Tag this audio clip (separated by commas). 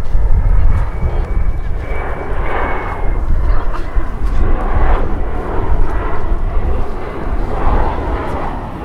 Aircraft, Fixed-wing aircraft, Vehicle